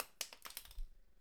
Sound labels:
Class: object falling